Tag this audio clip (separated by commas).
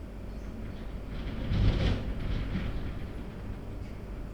Wind